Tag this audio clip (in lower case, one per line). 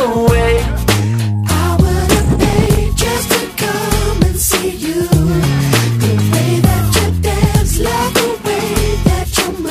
music
rhythm and blues